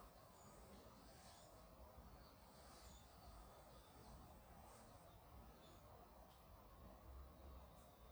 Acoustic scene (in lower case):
park